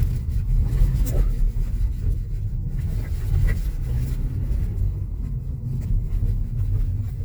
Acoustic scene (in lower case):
car